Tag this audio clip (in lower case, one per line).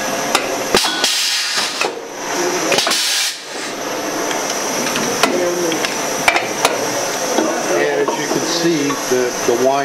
speech